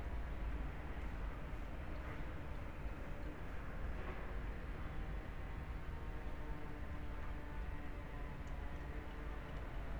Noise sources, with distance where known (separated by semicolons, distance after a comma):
unidentified powered saw, far